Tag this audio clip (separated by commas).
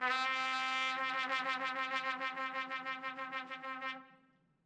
Brass instrument, Music, Trumpet, Musical instrument